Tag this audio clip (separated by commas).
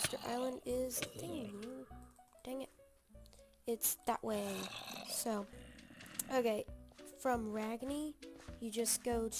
Speech